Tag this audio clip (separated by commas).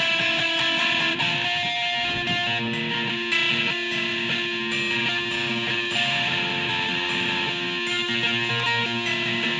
playing electric guitar, Music, Musical instrument, Plucked string instrument, Acoustic guitar, Electric guitar, Guitar